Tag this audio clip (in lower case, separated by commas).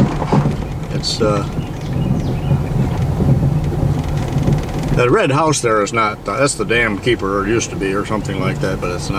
outside, rural or natural, speech